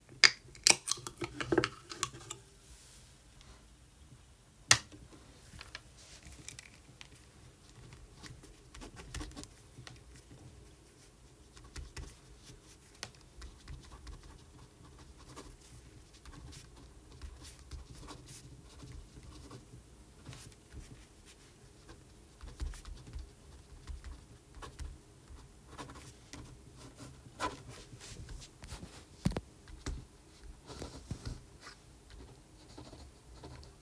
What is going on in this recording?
I opened a can of soda, I switched the light on, I grabbed a pen and started writing in my notebook.